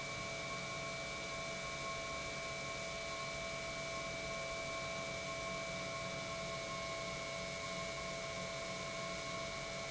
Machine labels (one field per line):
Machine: pump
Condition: normal